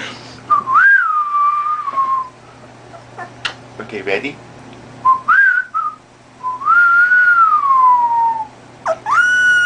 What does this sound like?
Man whistling and talking to a baby